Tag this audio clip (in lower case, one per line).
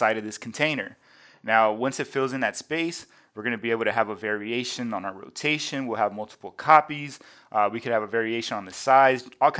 speech